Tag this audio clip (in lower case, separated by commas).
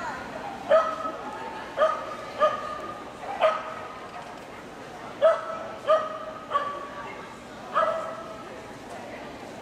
speech, yip